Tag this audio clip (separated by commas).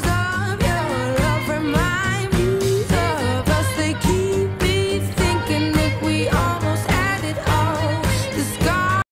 Music